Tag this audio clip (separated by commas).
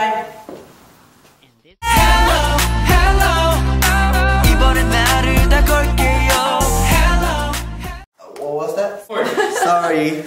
Music, Speech